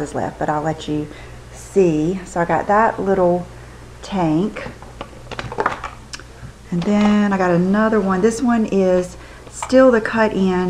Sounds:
inside a small room, Speech

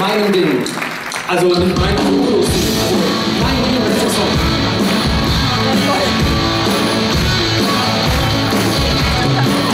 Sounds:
Speech, Music

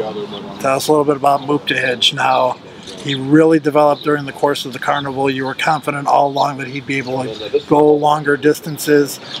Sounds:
Speech

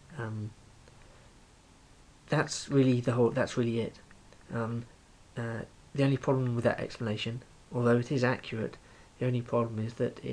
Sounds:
Speech

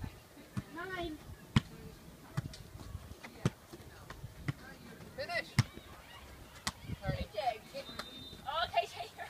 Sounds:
Speech

